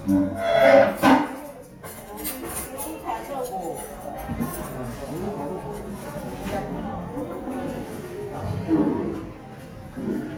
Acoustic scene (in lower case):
restaurant